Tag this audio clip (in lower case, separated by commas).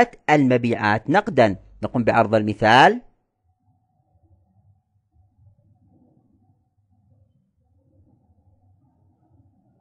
silence, speech, inside a small room